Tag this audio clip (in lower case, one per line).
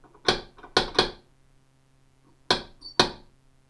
home sounds
knock
door